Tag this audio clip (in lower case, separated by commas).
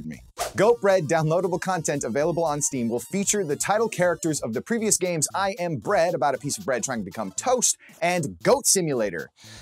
speech